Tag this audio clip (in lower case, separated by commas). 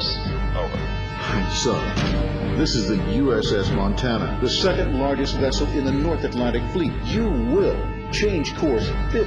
music, speech